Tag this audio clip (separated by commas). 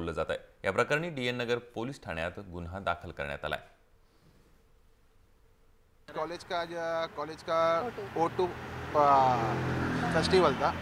Speech